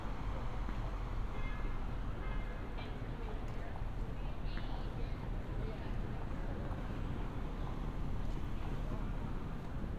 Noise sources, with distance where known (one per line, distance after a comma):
car horn
person or small group talking